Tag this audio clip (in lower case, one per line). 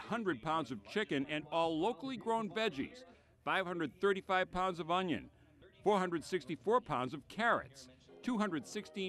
speech